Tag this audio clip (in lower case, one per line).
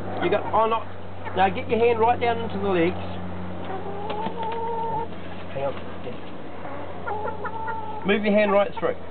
outside, rural or natural
speech
rooster
bird
livestock